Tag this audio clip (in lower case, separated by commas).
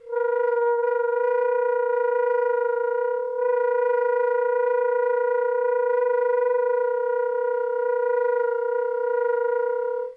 music, wind instrument, musical instrument